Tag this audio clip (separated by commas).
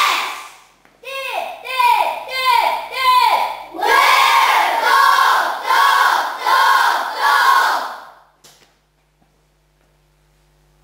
Speech